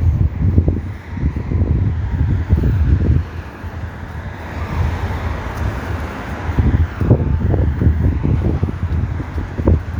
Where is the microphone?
on a street